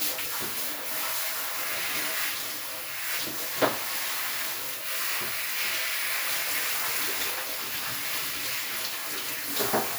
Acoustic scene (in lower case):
restroom